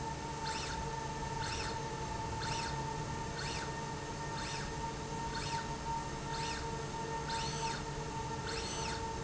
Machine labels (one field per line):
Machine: slide rail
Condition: normal